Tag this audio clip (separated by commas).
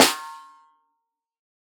Musical instrument, Music, Drum, Snare drum, Percussion